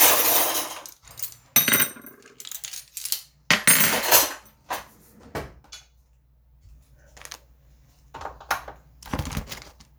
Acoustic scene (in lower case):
kitchen